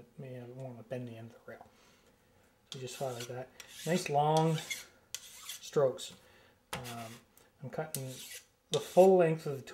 An adult man talking and rubbing metal together